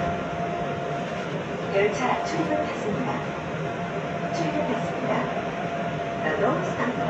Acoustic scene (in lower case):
subway train